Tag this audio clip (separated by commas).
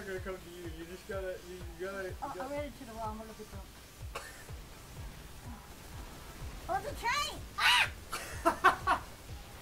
Speech